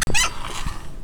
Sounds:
squeak

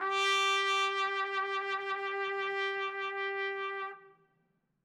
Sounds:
brass instrument, musical instrument, music, trumpet

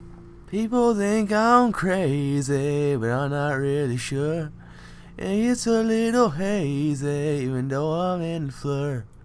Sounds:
singing, human voice

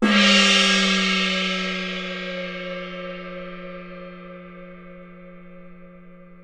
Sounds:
percussion, musical instrument, music, gong

